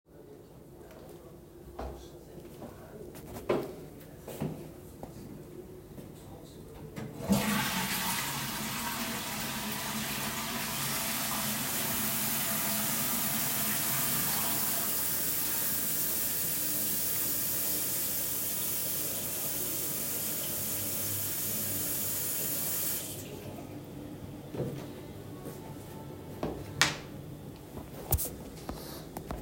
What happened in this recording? Toilet flushing as water starts running. The water is shut off and the light is turned off. There is audible TV mumble in the background throughout the entire scene.